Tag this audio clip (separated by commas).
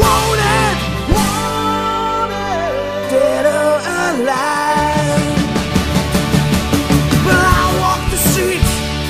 Music, Independent music